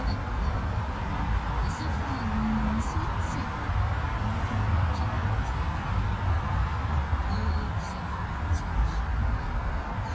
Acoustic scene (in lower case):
car